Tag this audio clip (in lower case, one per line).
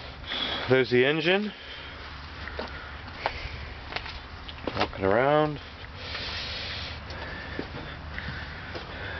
speech